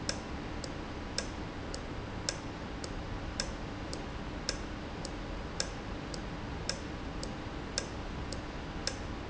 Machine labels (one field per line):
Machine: valve